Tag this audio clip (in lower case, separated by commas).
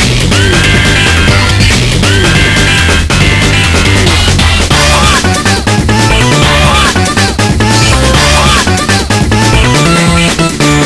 music